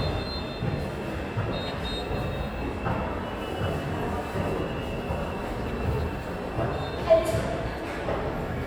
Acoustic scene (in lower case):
subway station